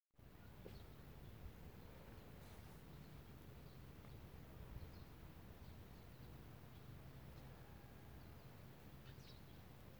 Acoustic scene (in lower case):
park